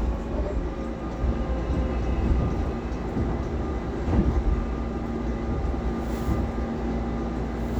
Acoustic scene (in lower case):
subway train